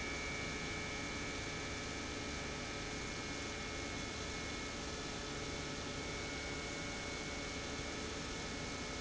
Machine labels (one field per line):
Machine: pump